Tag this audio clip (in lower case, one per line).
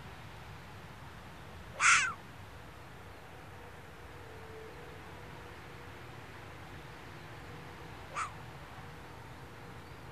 fox barking